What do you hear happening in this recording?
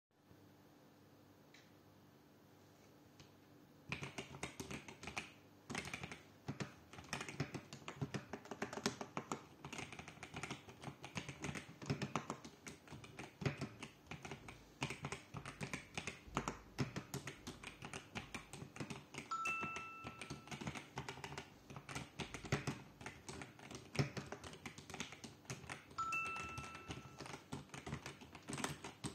I was typing (not from the beginning, but nonstop till the end), while I received one notification and then after some time another one.